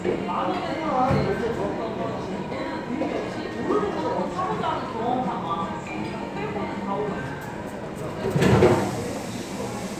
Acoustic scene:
cafe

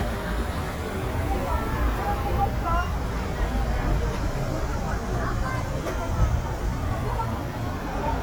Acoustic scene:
residential area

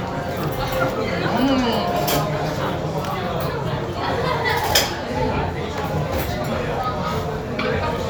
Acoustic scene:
restaurant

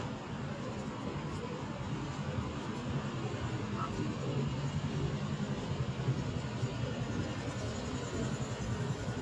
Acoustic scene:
street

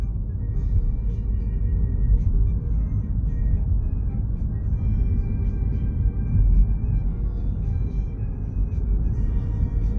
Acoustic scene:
car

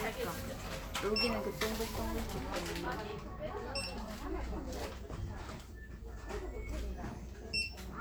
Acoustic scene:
crowded indoor space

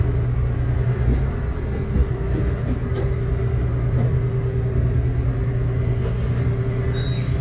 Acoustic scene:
bus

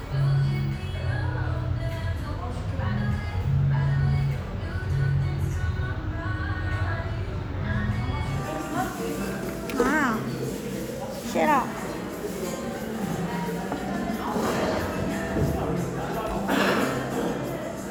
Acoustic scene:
cafe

